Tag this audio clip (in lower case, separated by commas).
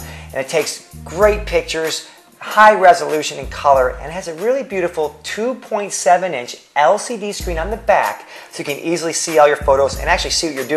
speech, music